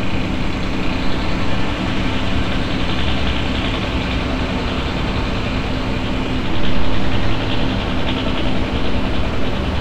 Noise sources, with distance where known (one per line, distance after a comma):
hoe ram, far